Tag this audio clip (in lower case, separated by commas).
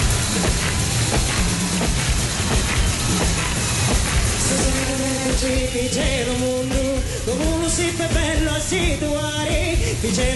music, folk music